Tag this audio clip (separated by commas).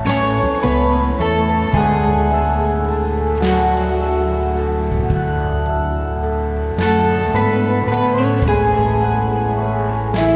Music